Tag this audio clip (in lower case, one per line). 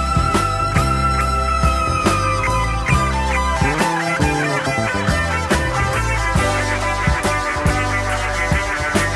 music